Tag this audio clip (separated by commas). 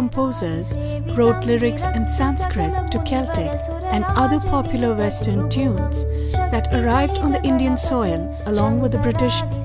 Speech, Music